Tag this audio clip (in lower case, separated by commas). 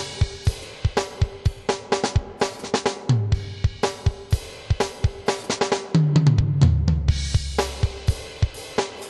drum, playing drum kit, musical instrument, drum kit, bass drum, music